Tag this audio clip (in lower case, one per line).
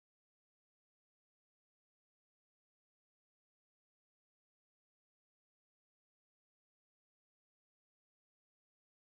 speech
inside a small room
silence